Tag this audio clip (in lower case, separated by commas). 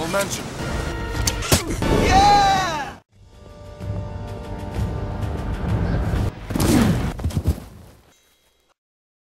speech, music